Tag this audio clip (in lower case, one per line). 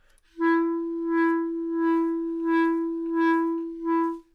musical instrument
woodwind instrument
music